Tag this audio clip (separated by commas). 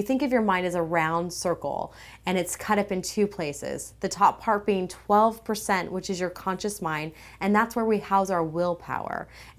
Speech